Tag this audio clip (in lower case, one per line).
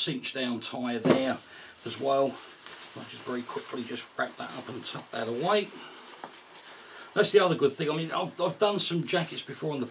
speech